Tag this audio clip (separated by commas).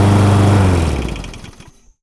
Engine